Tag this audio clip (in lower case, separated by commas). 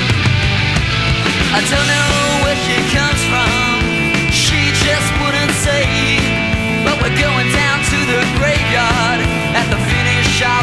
music, punk rock